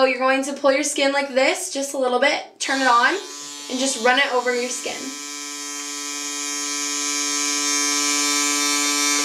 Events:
[0.00, 2.43] female speech
[0.09, 0.20] tick
[1.20, 1.30] generic impact sounds
[2.56, 3.22] female speech
[2.57, 9.24] mechanisms
[3.65, 5.07] female speech
[5.74, 5.84] generic impact sounds
[9.13, 9.24] generic impact sounds

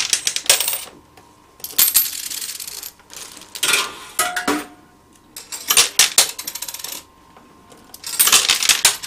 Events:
[0.00, 0.91] coin (dropping)
[0.00, 9.05] mechanisms
[0.83, 0.98] generic impact sounds
[1.09, 1.20] generic impact sounds
[1.55, 1.66] generic impact sounds
[1.58, 2.88] coin (dropping)
[2.18, 2.41] generic impact sounds
[2.60, 2.82] generic impact sounds
[3.30, 3.38] generic impact sounds
[3.52, 3.90] coin (dropping)
[4.15, 4.68] coin (dropping)
[5.07, 5.22] generic impact sounds
[5.33, 6.93] human voice
[5.33, 7.04] coin (dropping)
[7.28, 7.45] generic impact sounds
[7.67, 7.96] generic impact sounds
[7.97, 9.05] coin (dropping)

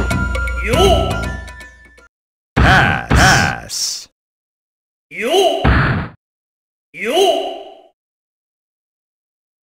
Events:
[0.00, 2.04] music
[0.57, 1.40] male speech
[2.54, 2.93] thwack
[2.54, 4.09] male speech
[2.54, 4.10] background noise
[3.06, 3.51] thwack
[5.07, 5.61] male speech
[5.09, 6.12] background noise
[5.63, 6.12] thwack
[6.91, 7.92] background noise
[6.93, 7.91] male speech

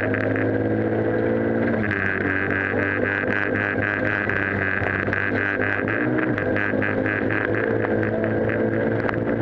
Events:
[0.00, 1.87] vroom
[0.00, 9.41] car
[1.13, 1.22] tick
[6.01, 9.41] vroom

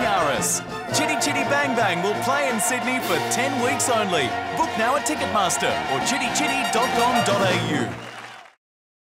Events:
[0.00, 7.94] music
[5.90, 7.90] male speech
[7.98, 8.49] whistling
[7.98, 8.51] applause

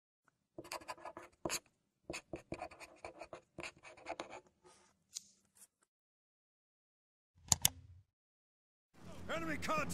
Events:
[4.56, 4.92] writing
[5.06, 5.67] computer keyboard
[5.74, 5.85] tick
[7.42, 7.72] clicking
[8.92, 9.93] man speaking
[8.93, 9.93] music

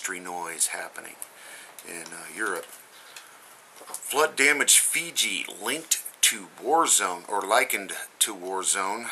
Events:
[0.00, 1.23] man speaking
[0.00, 9.11] mechanisms
[0.90, 1.28] computer keyboard
[1.39, 1.73] breathing
[1.76, 1.86] computer keyboard
[1.82, 2.71] man speaking
[2.02, 2.20] computer keyboard
[2.51, 2.81] computer keyboard
[2.93, 3.39] breathing
[3.06, 3.19] computer keyboard
[3.76, 4.00] computer keyboard
[4.06, 6.10] man speaking
[6.24, 8.10] man speaking
[7.94, 8.13] breathing
[8.22, 9.11] man speaking

